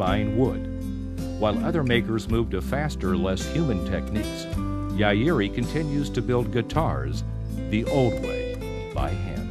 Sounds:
Guitar, Acoustic guitar, Speech, Musical instrument, Music

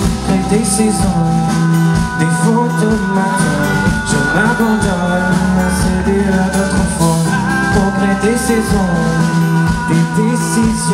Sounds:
Music

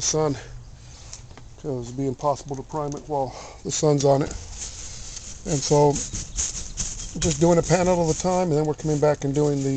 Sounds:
Speech

